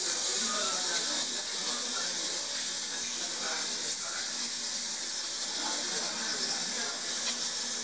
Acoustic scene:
restaurant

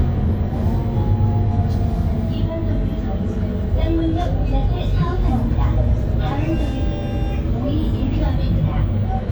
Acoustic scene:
bus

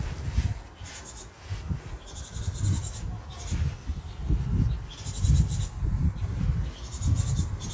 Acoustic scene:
park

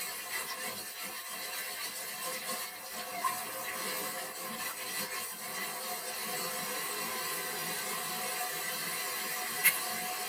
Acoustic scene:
kitchen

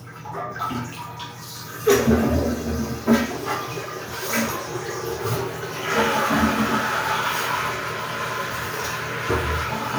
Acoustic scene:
restroom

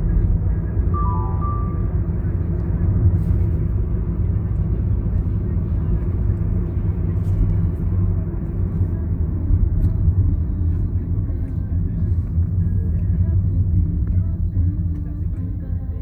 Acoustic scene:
car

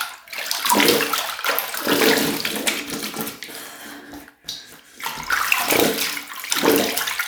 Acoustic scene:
restroom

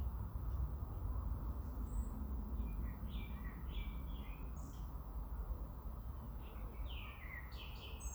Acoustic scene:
park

